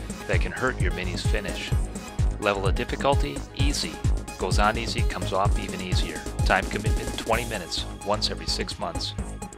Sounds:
Speech, Music

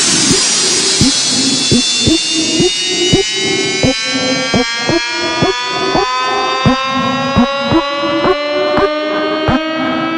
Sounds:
Music, Siren

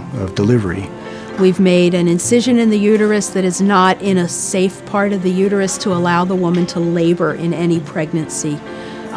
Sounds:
Music, Speech

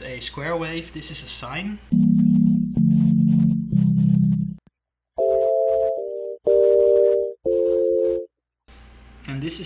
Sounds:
Music, Musical instrument, Speech, Piano, Keyboard (musical)

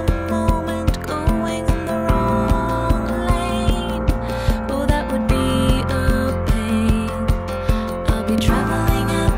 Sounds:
Music

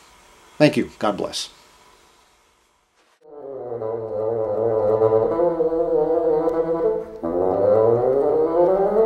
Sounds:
playing bassoon

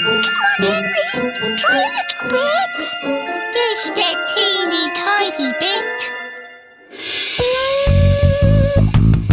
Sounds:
Music, inside a small room, Speech

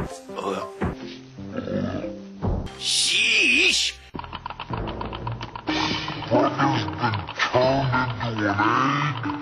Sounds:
Music, outside, rural or natural, Speech

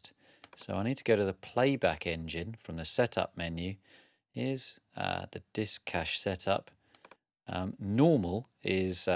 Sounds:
Speech

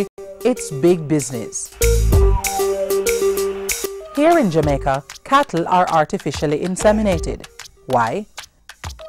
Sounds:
Speech, Music

